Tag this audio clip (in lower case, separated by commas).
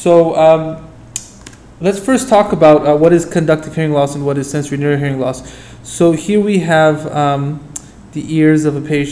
speech